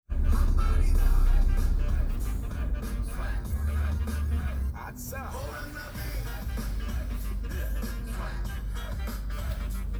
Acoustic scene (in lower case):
car